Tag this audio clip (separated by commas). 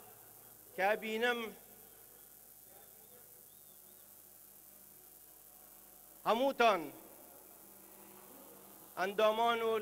man speaking, Speech, monologue